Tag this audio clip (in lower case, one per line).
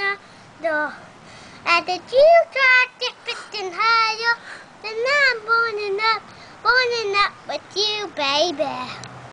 child singing